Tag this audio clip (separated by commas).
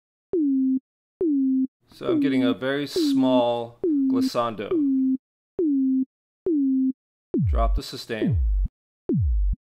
Speech